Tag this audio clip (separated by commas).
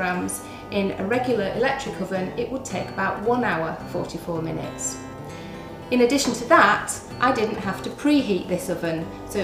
Music, Speech